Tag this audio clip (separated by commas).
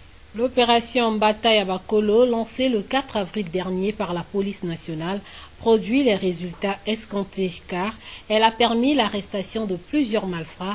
Speech